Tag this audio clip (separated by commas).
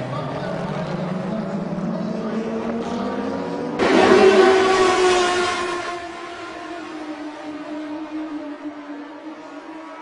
Car passing by